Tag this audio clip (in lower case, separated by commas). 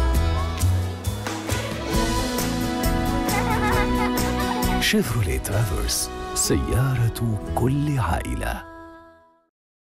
music, speech